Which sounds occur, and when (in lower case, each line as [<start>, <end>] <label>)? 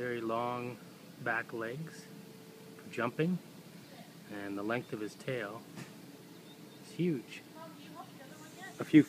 [0.00, 0.81] man speaking
[0.00, 9.05] mechanisms
[1.20, 2.08] man speaking
[2.72, 2.81] tick
[2.85, 3.34] man speaking
[3.84, 4.17] woman speaking
[4.28, 5.63] man speaking
[4.69, 5.08] tweet
[5.72, 5.86] generic impact sounds
[6.12, 6.95] tweet
[6.78, 7.40] man speaking
[7.50, 8.74] woman speaking
[8.28, 9.05] insect